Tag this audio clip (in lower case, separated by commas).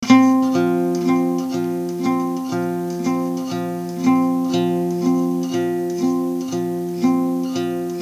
guitar, acoustic guitar, plucked string instrument, musical instrument, music